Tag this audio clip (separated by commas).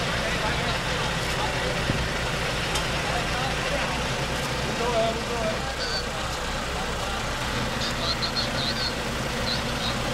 Speech, Vehicle, outside, urban or man-made